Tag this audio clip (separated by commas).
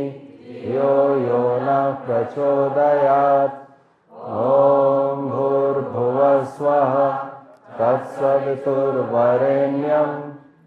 Mantra